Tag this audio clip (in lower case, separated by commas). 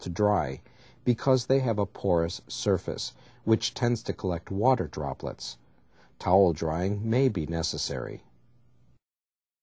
speech